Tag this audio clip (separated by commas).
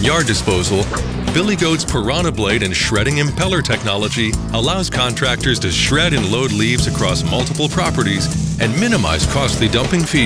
Music, Speech